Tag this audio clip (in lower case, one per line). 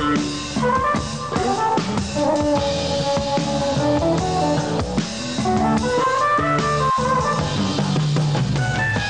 guitar
music
musical instrument
strum
plucked string instrument
acoustic guitar